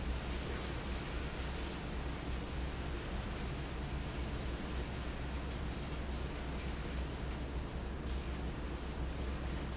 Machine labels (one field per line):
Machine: fan